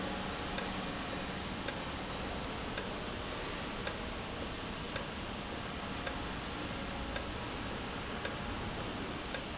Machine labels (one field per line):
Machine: valve